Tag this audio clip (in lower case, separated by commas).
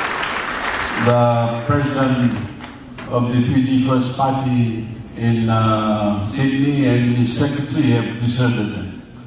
male speech, speech